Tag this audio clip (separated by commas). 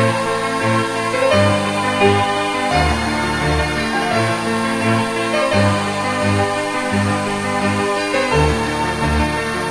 Music, Sound effect